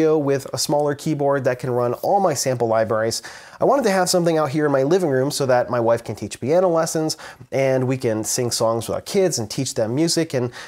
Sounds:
Speech

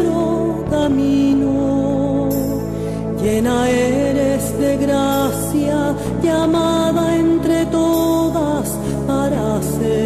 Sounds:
Music

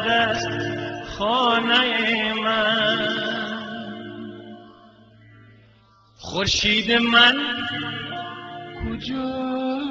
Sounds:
Music

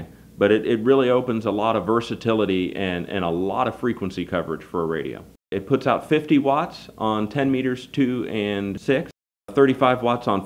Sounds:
Speech

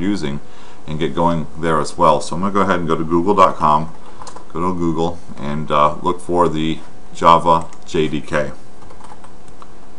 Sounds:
Speech, Computer keyboard, Typing

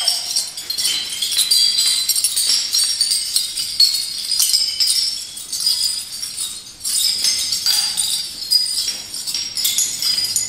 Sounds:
Sound effect

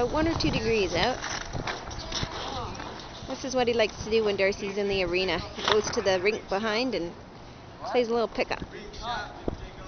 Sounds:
Speech

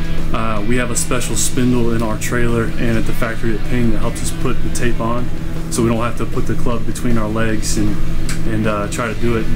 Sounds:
Music, Speech

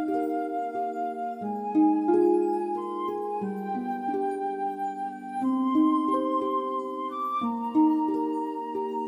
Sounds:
Music

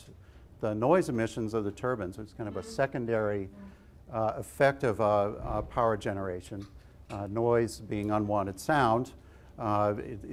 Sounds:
Speech

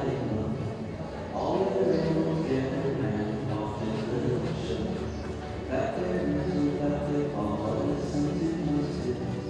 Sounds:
Music, Horse

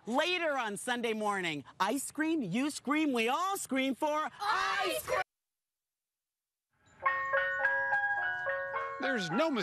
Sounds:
ice cream van, Speech

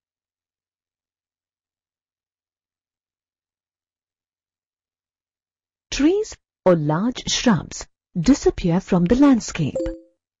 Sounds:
Speech

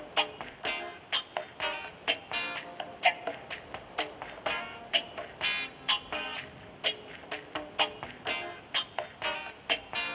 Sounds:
Music, Radio

